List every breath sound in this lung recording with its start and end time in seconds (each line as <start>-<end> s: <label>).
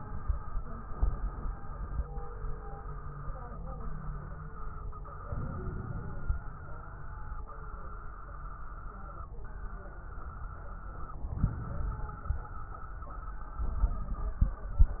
5.24-6.40 s: inhalation
5.24-6.40 s: crackles
11.21-12.45 s: inhalation
11.21-12.45 s: crackles